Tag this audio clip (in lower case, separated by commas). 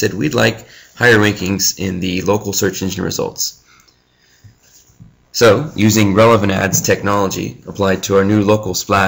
speech